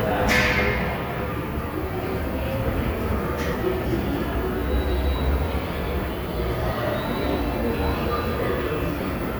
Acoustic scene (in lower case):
subway station